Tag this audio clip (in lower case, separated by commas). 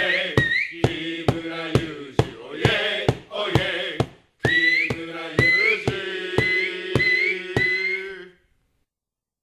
mantra